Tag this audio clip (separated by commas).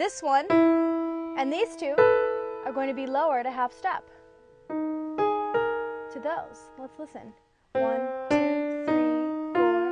Electric piano, Musical instrument, Music, Keyboard (musical), Piano, Speech